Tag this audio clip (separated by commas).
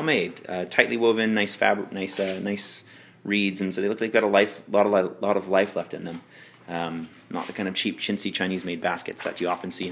Speech